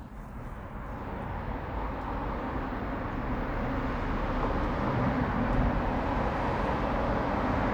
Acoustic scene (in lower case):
residential area